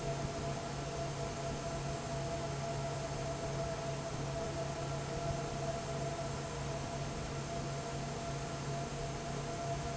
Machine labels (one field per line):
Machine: fan